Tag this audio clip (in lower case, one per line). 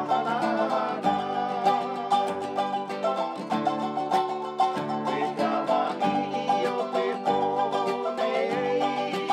music